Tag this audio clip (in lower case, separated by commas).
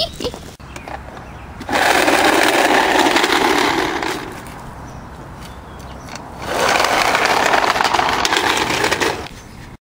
outside, rural or natural